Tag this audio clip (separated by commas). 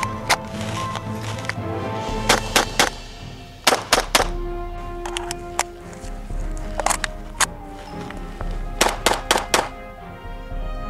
machine gun shooting